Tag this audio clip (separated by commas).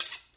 silverware, Domestic sounds